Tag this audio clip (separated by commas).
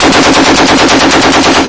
gunfire, Explosion